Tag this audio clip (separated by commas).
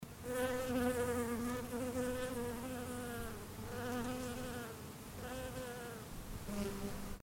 Wild animals, Insect, Animal